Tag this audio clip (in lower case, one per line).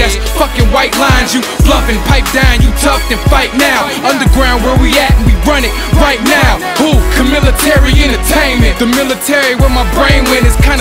music